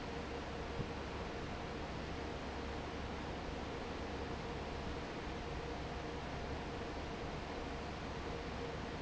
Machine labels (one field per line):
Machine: fan